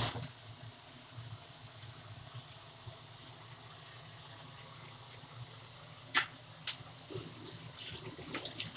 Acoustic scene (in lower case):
kitchen